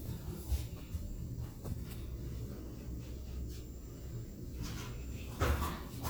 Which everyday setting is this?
elevator